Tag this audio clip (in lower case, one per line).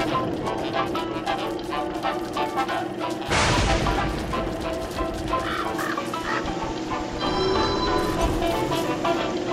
music